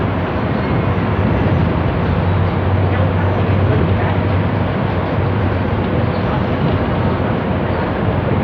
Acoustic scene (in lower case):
bus